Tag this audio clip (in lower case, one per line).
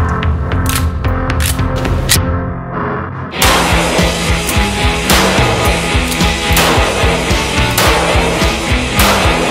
music